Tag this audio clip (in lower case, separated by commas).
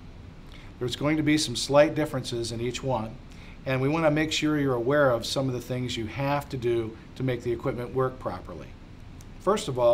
speech